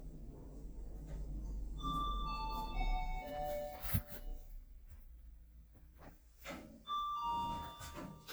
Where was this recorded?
in an elevator